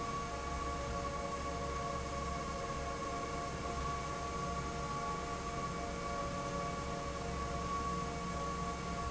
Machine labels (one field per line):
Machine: fan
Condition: normal